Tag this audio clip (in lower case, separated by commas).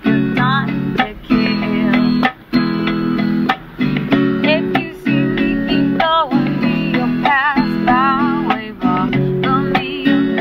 music